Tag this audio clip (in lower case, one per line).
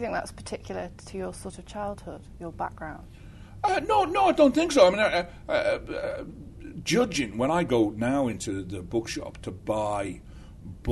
speech
inside a small room